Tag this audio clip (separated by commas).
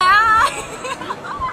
Human voice, Laughter